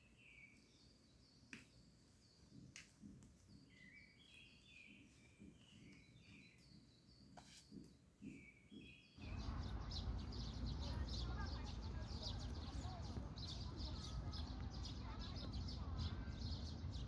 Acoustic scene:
park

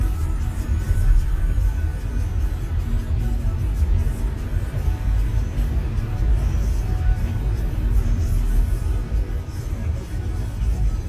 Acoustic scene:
car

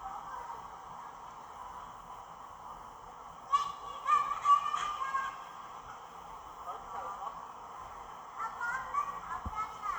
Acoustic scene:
park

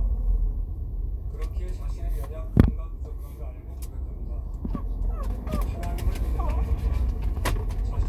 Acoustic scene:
car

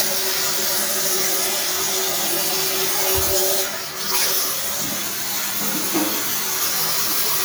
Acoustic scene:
restroom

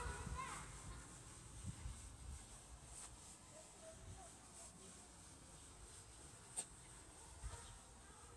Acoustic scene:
park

